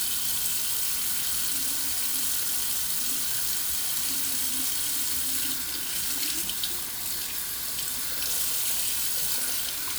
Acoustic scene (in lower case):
restroom